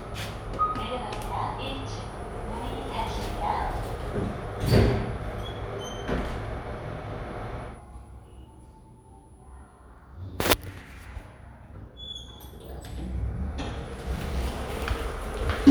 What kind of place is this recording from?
elevator